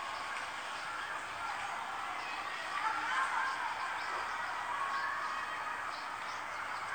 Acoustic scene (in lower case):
residential area